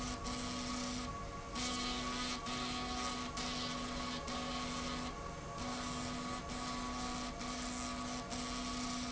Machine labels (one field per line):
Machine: slide rail